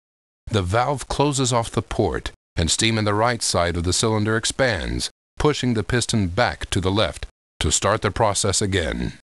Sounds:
speech

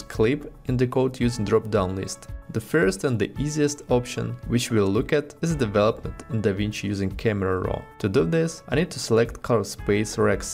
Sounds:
music
speech

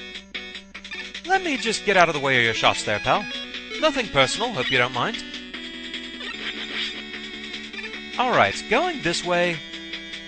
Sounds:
speech

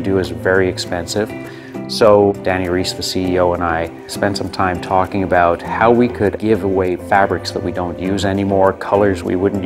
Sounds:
speech
music

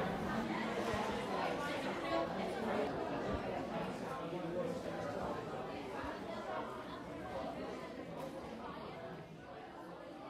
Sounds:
chatter

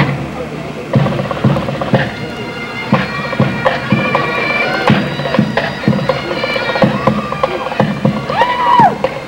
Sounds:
bagpipes
woodwind instrument

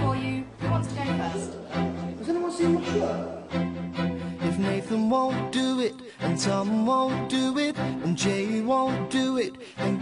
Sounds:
music
speech

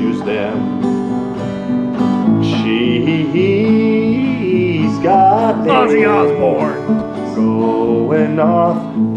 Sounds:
speech
music

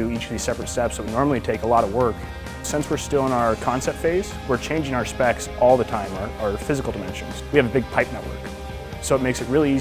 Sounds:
music
speech

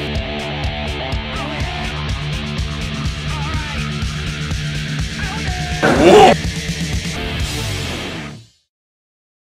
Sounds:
music

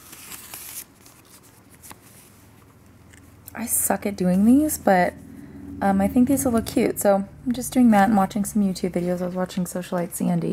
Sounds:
speech
crumpling

